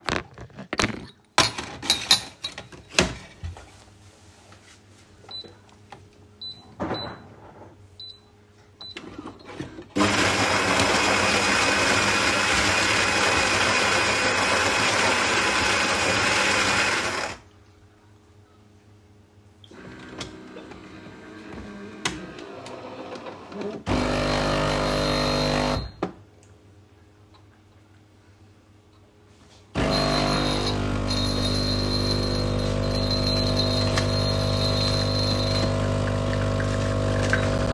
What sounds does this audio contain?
cutlery and dishes, coffee machine